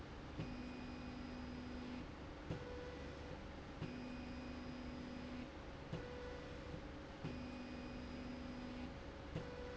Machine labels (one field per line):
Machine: slide rail